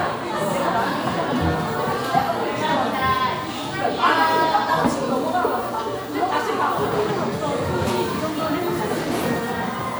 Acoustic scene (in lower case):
crowded indoor space